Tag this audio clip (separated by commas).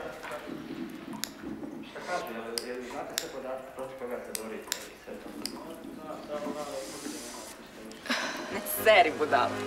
Speech